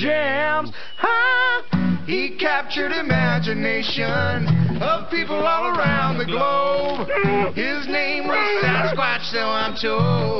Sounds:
music

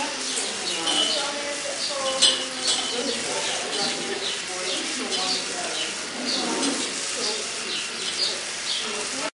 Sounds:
speech
animal

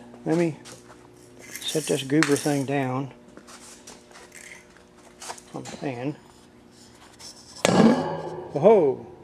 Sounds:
speech
inside a small room

